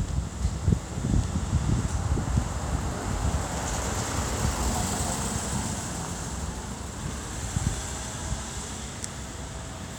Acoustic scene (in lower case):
street